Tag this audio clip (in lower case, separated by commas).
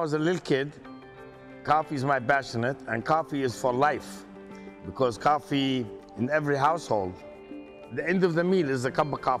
music, speech